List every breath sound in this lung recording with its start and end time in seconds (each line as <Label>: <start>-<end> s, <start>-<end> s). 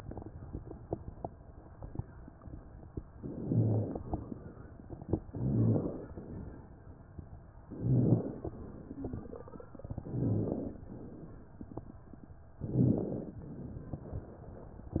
Inhalation: 3.19-4.00 s, 5.31-6.13 s, 7.67-8.48 s, 10.07-10.87 s, 12.64-13.42 s
Wheeze: 8.84-9.43 s
Rhonchi: 3.19-4.00 s, 5.31-6.13 s, 7.78-8.37 s, 10.07-10.70 s, 12.69-13.17 s